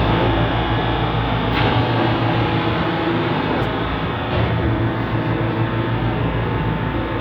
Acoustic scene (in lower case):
subway train